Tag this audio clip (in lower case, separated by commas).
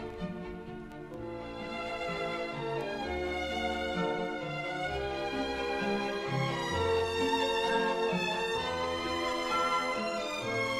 violin, music, musical instrument